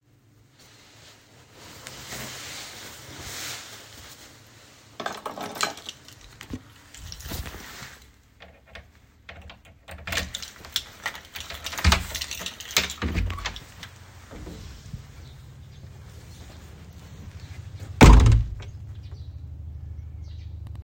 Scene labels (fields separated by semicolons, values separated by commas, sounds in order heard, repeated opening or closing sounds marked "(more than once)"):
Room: hallway; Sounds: keys, door (more than once)